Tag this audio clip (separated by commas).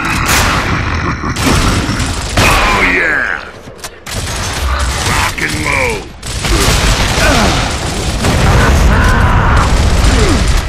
Speech